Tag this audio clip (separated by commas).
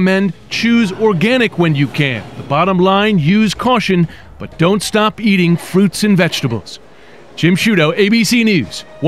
inside a public space, Speech